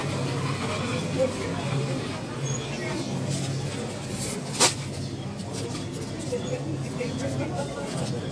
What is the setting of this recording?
crowded indoor space